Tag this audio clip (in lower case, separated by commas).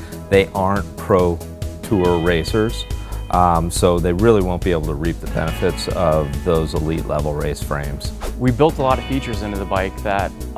music, speech